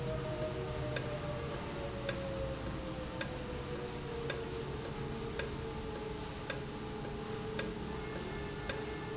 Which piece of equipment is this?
valve